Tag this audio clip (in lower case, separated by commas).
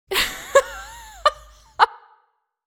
human voice, laughter